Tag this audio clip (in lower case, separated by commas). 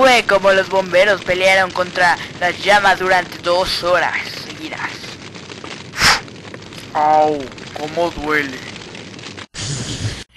speech